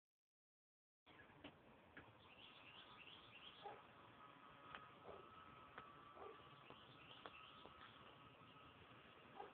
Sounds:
outside, rural or natural

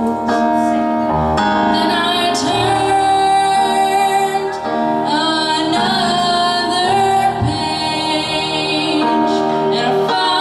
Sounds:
Music, Female singing

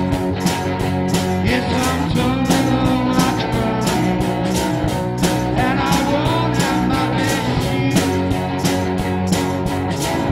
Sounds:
Music, Rock music

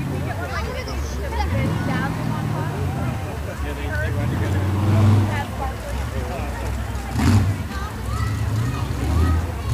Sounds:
Speech, Vehicle, Truck

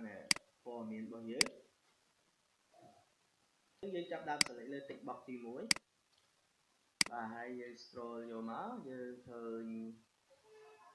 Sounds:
Clicking

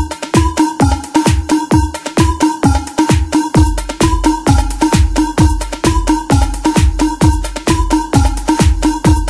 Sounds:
Music

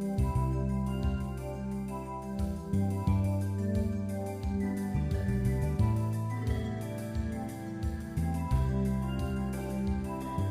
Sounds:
Music

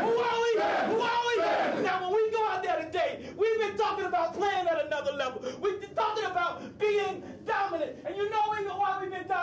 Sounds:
monologue, Speech, Male speech

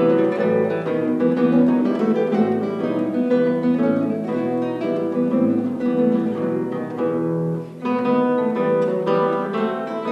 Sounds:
Harp

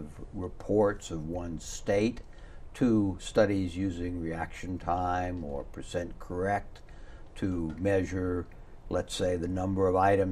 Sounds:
Speech

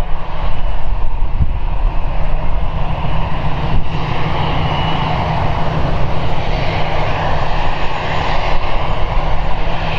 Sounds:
outside, urban or man-made, Vehicle, Aircraft engine, Aircraft, airplane

